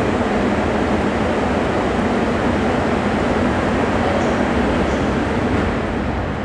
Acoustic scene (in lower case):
subway station